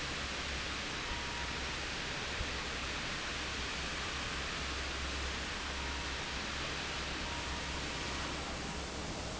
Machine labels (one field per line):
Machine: fan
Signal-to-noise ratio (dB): -6 dB